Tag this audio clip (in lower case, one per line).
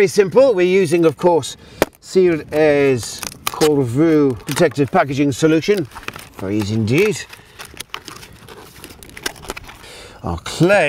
speech